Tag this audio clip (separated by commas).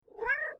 Meow, Domestic animals, Cat, Animal